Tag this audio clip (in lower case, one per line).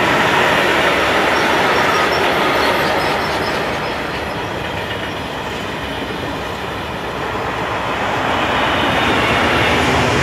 train
rail transport
vehicle
train wagon